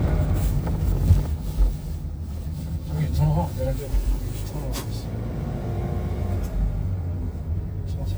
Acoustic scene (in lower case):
car